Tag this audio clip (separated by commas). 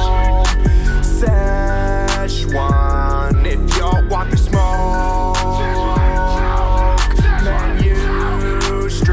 rapping